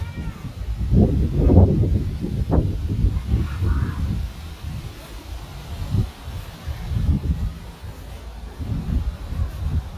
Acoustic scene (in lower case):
residential area